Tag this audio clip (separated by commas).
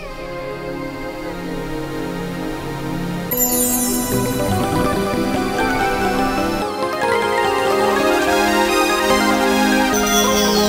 Music